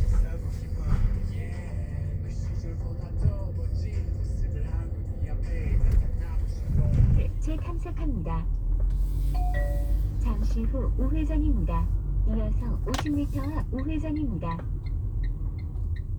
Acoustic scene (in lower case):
car